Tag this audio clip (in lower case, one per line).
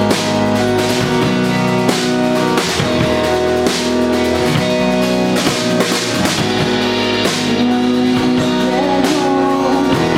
music